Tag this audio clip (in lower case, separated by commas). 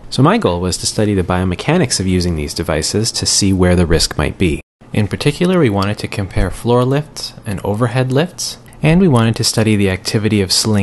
speech